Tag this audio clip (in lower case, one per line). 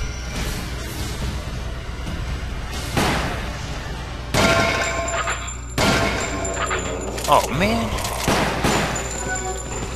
inside a large room or hall
speech
music